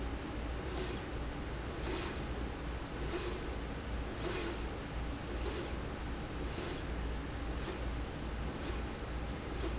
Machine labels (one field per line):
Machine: slide rail